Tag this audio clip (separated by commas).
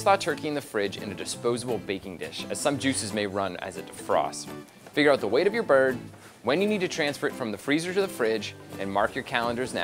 Speech, Music